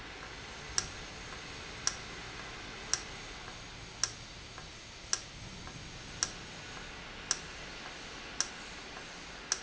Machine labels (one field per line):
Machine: valve